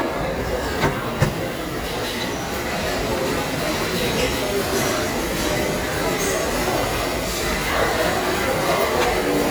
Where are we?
in a crowded indoor space